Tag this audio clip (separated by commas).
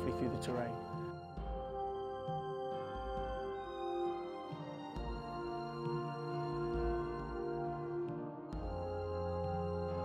Music, Speech